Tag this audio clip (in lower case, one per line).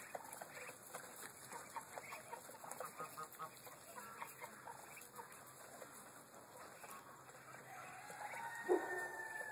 livestock
bird
rooster
duck